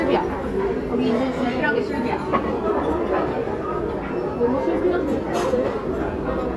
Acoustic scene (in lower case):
crowded indoor space